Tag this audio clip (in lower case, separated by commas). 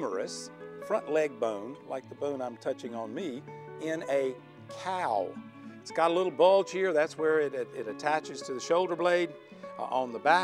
speech, music